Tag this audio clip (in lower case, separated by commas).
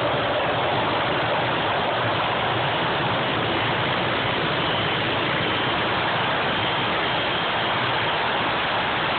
engine, vehicle